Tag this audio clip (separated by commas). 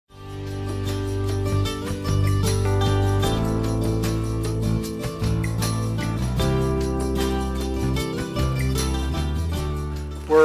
Music, Country